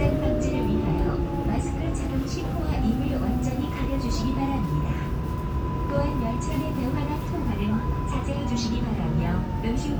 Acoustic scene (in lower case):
subway train